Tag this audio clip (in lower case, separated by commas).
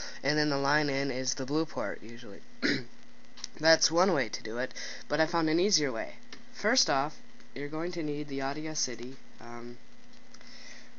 speech